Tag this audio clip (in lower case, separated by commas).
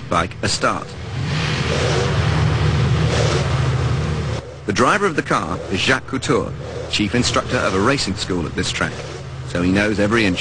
speech, vehicle